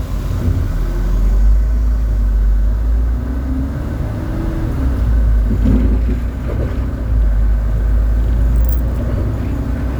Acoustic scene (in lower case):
bus